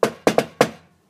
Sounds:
Domestic sounds, Door, Knock

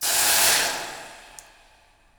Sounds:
Hiss

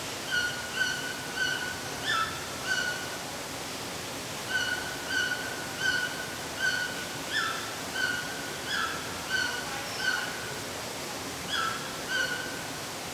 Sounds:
Bird, Wild animals, Water, Animal

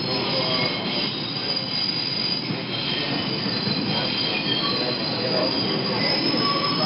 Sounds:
Rail transport, metro, Vehicle

